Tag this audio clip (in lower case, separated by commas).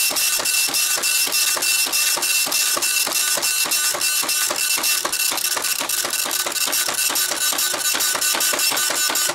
printer, inside a small room